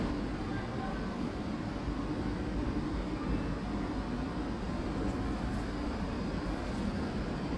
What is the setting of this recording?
residential area